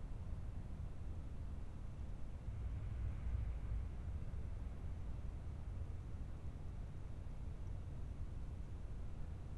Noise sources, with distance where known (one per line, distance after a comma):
background noise